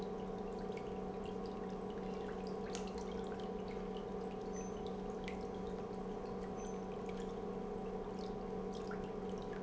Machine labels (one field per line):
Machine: pump